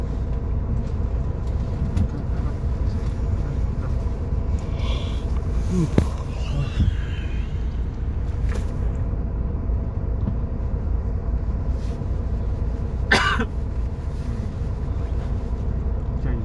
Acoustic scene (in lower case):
car